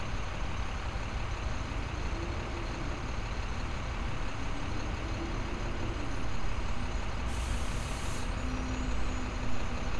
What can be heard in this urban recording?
large-sounding engine